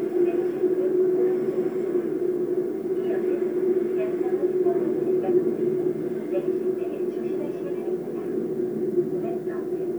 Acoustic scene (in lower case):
subway train